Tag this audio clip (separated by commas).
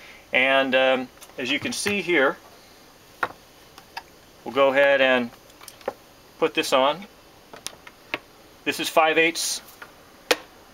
inside a small room, Speech